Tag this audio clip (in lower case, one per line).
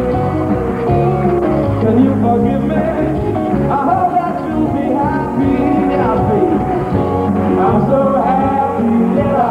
music